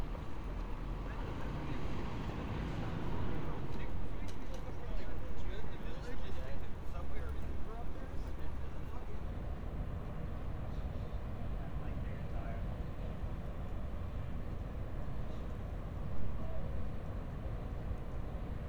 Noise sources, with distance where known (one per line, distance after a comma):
unidentified human voice